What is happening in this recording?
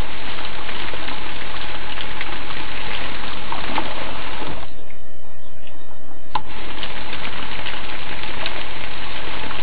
Water pours into a basin and abruptly turns off